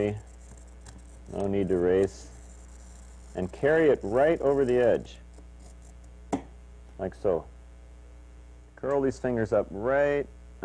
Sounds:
speech

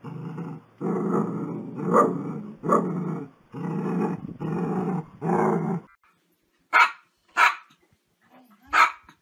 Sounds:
dog barking

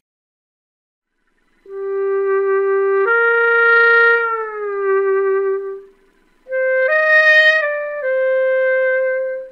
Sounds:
music
musical instrument
clarinet

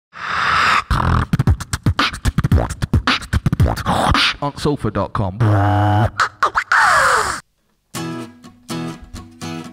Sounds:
music
speech
beatboxing

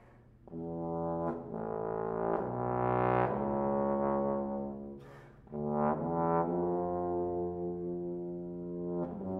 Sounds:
playing trombone

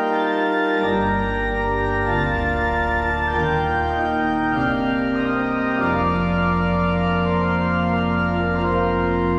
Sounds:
music
background music

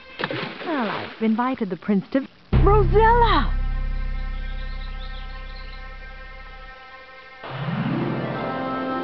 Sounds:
bird
coo

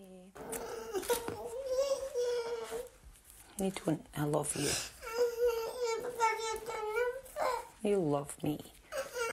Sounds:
inside a small room
kid speaking
speech

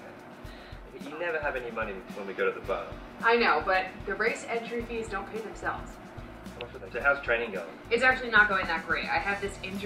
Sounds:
inside a small room
music
speech

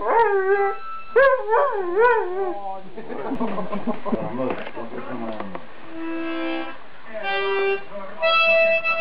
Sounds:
dog baying

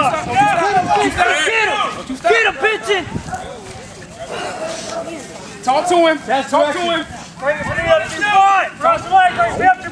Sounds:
speech

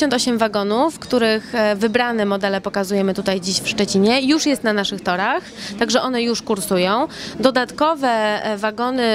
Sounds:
speech
train
vehicle

